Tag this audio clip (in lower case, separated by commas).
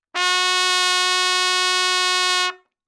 brass instrument, musical instrument, music, trumpet